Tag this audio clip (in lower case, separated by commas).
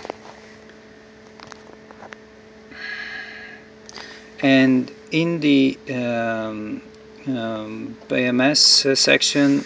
inside a small room, speech